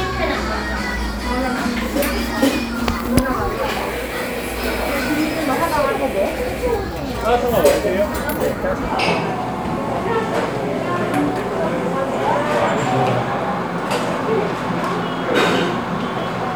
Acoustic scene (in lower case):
cafe